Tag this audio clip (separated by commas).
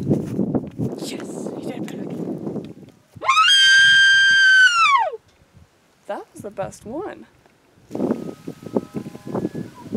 elk bugling